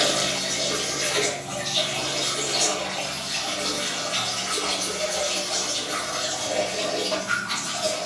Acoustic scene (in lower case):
restroom